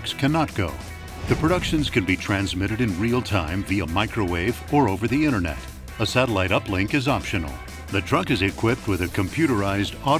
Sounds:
speech, music

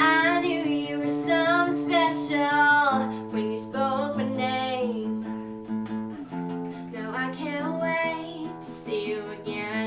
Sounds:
music, female singing

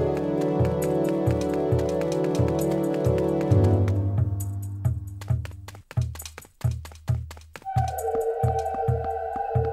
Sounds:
music

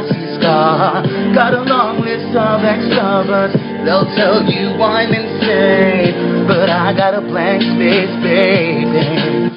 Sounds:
singing, music

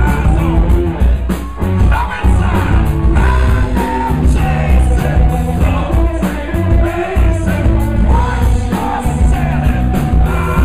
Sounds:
music

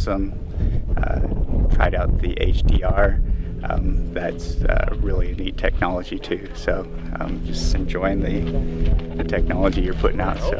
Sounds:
speech

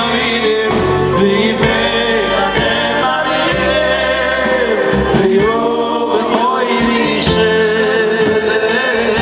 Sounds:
music, inside a large room or hall, choir

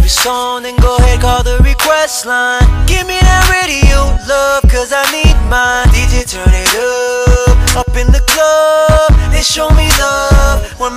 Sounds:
music

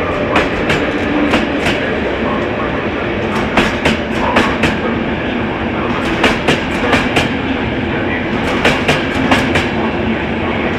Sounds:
vehicle

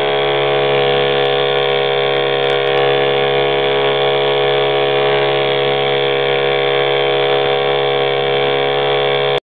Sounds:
vehicle, engine, idling

